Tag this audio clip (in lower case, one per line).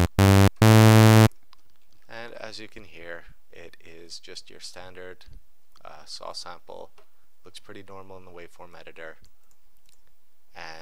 speech
sampler